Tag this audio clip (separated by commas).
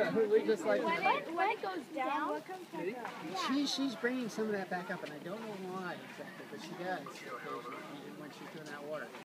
Speech